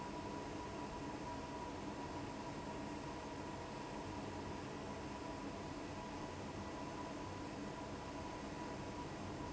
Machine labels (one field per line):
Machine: fan